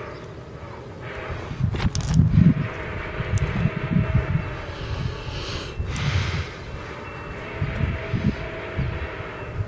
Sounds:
vehicle

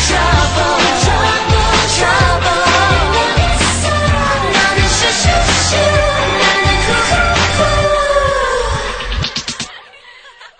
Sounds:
pop music, singing, music

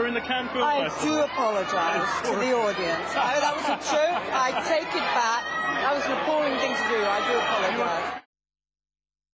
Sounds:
speech

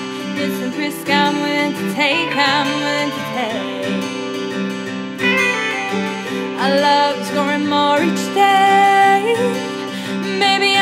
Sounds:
music

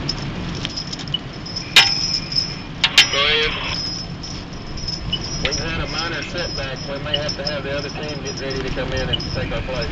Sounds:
speech

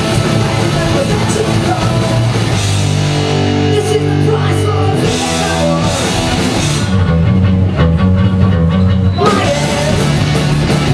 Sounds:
singing, music, punk rock, guitar, rock music, heavy metal

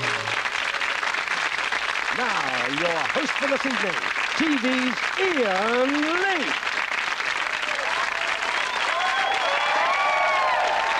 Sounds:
speech

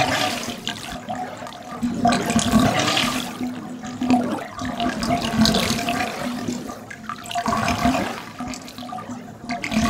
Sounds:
water, sink (filling or washing)

